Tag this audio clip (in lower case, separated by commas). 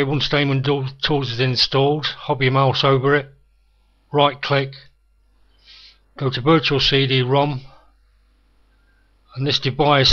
speech